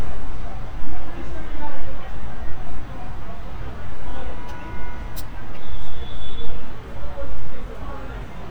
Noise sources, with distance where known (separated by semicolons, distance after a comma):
car horn, far; person or small group talking